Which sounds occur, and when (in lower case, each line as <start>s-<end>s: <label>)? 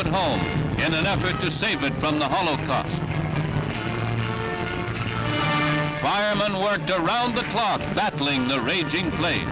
0.0s-9.5s: music
0.0s-9.5s: background noise
0.1s-0.5s: male speech
0.7s-2.8s: male speech
5.9s-7.8s: male speech
6.0s-9.5s: fire
7.9s-9.5s: male speech